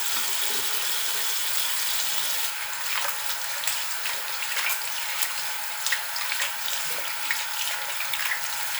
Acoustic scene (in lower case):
restroom